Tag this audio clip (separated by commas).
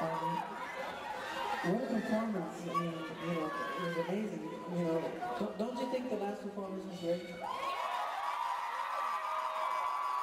Narration, Male speech, Speech